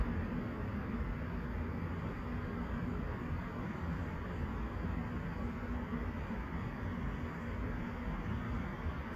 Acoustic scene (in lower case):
street